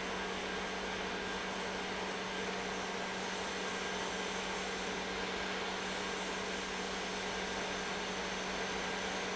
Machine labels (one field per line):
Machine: pump